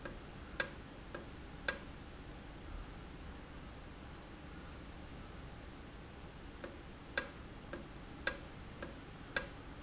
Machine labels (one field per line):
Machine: valve